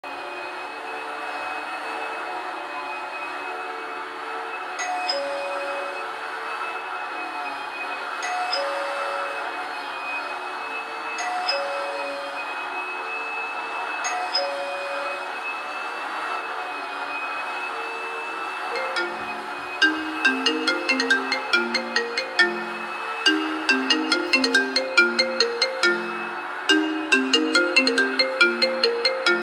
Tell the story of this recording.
while I was cleaning the living room using a vacuum cleaner the bell rang and after I didint hear it my phone rang while I�m still cleaning